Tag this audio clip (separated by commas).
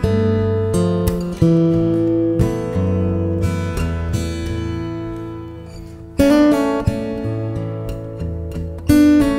Plucked string instrument, Music, Musical instrument, Guitar, Acoustic guitar, Strum